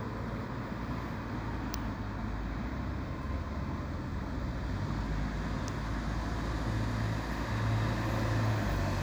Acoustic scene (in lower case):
residential area